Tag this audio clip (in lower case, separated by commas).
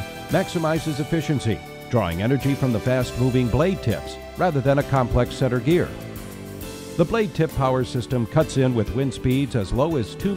speech, music